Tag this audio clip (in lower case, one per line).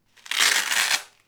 home sounds